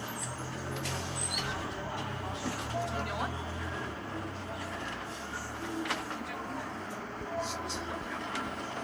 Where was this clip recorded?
on a bus